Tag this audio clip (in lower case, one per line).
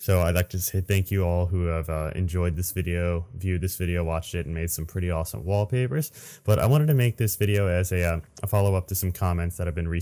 speech